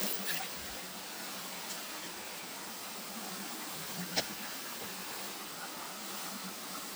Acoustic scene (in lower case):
park